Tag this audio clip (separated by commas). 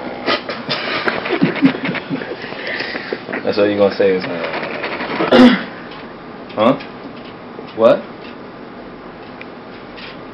Speech